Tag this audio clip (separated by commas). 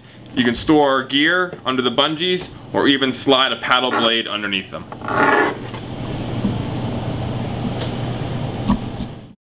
Speech